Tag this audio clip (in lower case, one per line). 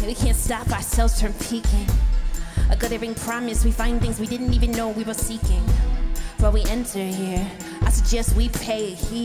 music